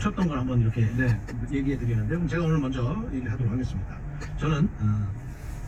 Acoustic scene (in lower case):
car